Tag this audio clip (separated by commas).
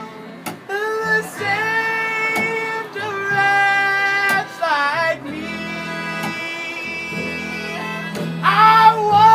Music